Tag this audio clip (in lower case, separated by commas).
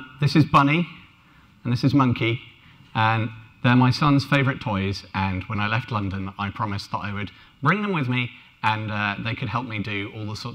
speech